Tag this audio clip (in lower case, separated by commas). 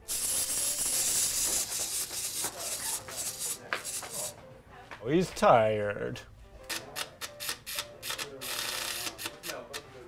speech, music